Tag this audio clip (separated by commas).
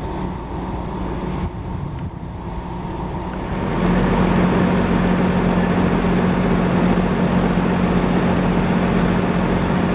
Truck, Vehicle